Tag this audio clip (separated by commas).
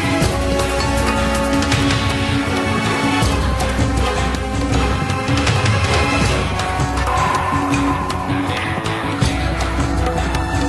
Music